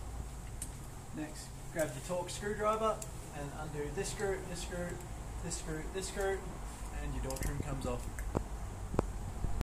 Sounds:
speech

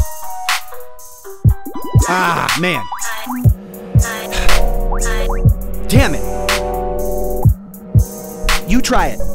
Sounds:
rapping

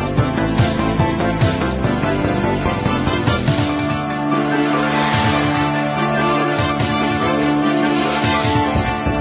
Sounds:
music, video game music

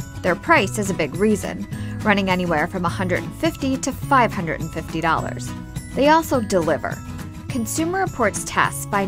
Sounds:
music, speech

